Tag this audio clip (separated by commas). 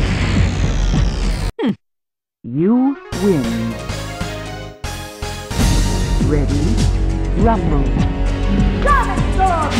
Music, Speech